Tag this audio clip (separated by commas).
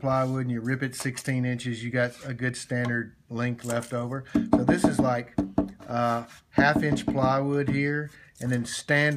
Speech